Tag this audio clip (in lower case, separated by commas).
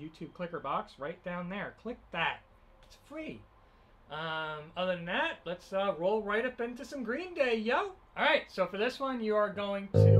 speech, music, musical instrument, electric guitar